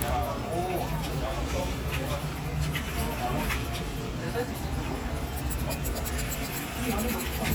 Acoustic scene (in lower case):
crowded indoor space